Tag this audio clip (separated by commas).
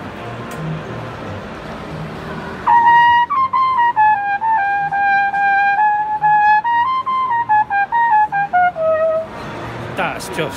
playing cornet